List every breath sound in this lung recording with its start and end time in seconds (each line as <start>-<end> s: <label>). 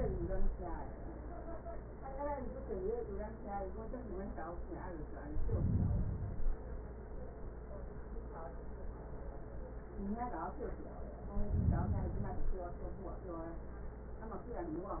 5.16-6.66 s: inhalation
11.36-12.86 s: inhalation